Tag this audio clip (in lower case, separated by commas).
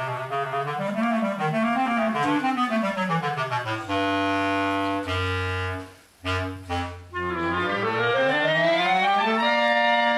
playing clarinet, clarinet, musical instrument, saxophone, music